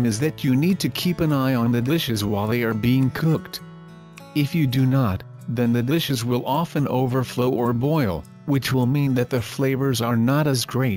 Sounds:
Music, Speech

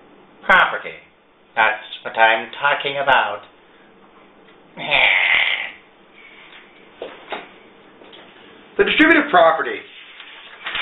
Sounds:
inside a small room, Speech

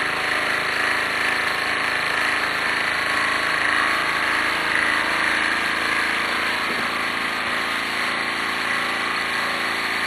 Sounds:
Engine, Idling

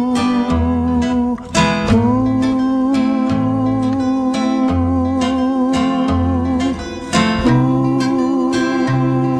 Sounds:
Music

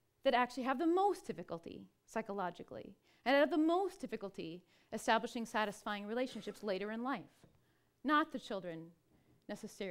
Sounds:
kid speaking

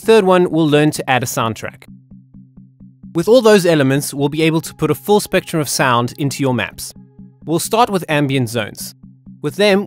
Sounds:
Music, Speech

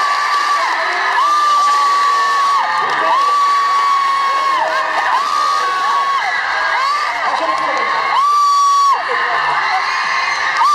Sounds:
Speech

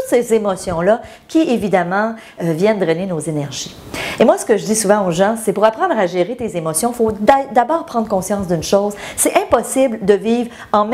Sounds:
Speech

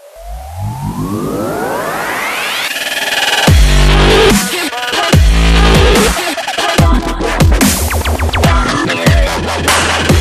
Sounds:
Music, Drum and bass

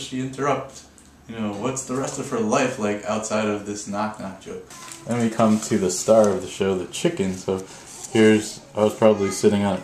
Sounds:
Speech

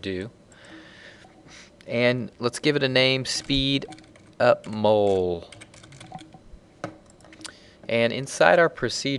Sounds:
Speech

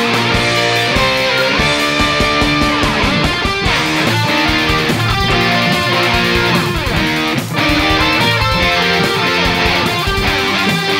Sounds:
Music, Musical instrument, Electric guitar, Acoustic guitar, Plucked string instrument, Strum, Guitar

